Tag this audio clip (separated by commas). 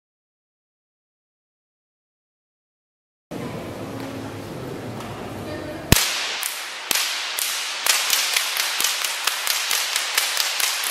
Whip